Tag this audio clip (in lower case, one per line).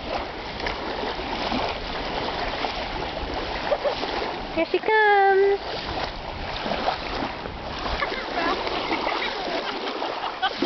speech